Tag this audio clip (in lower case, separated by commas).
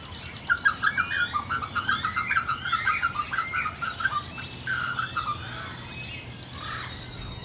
animal, bird, wild animals